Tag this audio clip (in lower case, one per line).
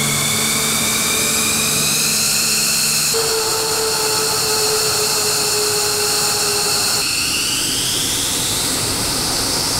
fixed-wing aircraft
vehicle
aircraft
inside a large room or hall